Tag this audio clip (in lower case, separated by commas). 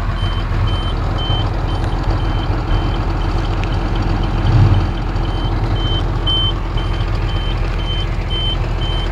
vehicle, reversing beeps